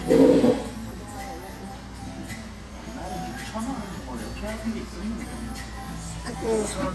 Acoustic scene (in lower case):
restaurant